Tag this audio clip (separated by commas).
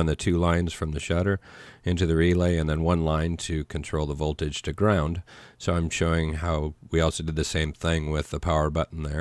Speech